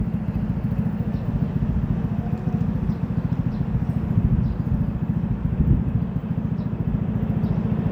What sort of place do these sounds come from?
street